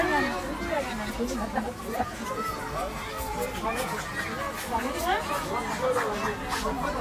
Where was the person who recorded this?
in a park